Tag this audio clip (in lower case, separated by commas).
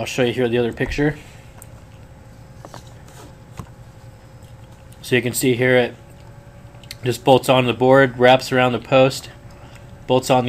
speech